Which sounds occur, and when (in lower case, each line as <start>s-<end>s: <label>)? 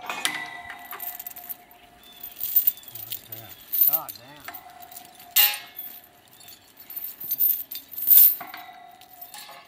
0.0s-1.8s: clang
0.8s-1.7s: generic impact sounds
1.5s-2.2s: bird call
2.0s-4.2s: generic impact sounds
2.6s-3.0s: bird call
3.2s-3.6s: man speaking
3.3s-3.6s: bird call
3.8s-4.4s: man speaking
4.1s-4.3s: bird call
4.3s-5.3s: generic impact sounds
4.4s-5.8s: clang
5.7s-6.0s: bird call
5.8s-6.0s: walk
6.2s-8.0s: generic impact sounds
6.2s-6.6s: bird call
7.2s-7.8s: walk
7.9s-8.3s: walk
8.3s-9.6s: clang
8.9s-9.2s: walk
9.2s-9.4s: bird call